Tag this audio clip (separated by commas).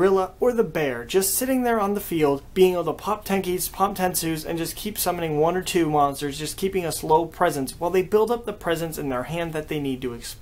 Speech